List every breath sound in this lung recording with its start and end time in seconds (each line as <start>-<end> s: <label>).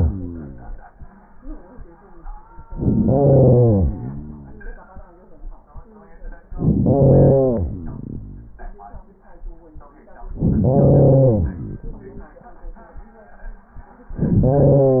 2.68-3.78 s: inhalation
3.73-5.23 s: exhalation
6.48-7.60 s: inhalation
7.57-9.10 s: exhalation
10.32-11.46 s: inhalation
11.43-12.57 s: exhalation